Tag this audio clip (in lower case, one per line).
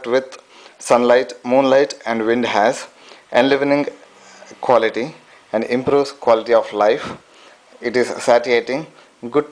speech